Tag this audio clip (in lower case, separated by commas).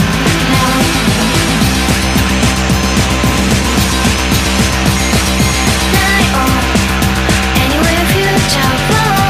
music